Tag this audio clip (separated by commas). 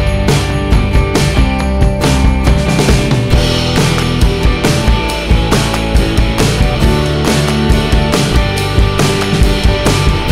Music